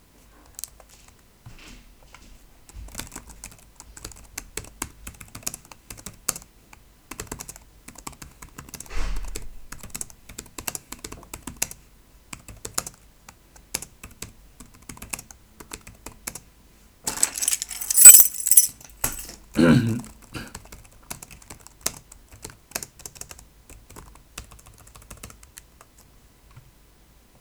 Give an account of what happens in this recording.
Typing on a Laptop keyboard, then moving a key and clearing throat.